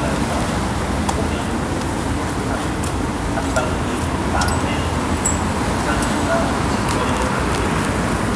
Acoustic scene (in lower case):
street